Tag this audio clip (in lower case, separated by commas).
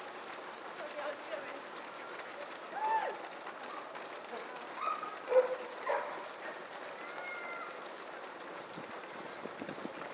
run, speech, people running, outside, urban or man-made